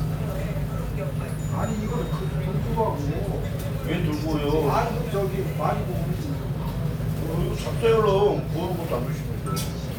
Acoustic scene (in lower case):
restaurant